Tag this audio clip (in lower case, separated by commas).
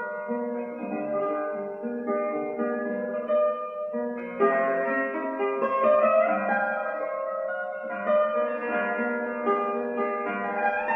music, musical instrument, guitar